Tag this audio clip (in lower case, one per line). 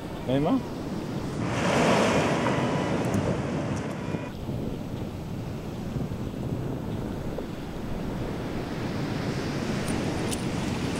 speech